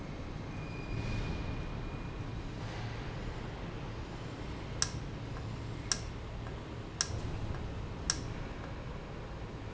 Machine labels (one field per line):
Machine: valve